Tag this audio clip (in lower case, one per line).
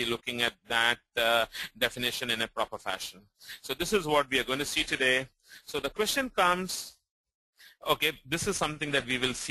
speech